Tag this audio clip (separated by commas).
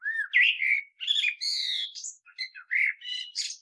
Animal, Wild animals, Bird